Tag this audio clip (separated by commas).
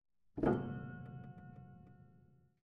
Musical instrument, Music, Piano, Keyboard (musical)